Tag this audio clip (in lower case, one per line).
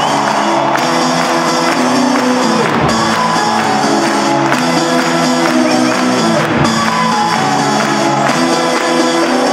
music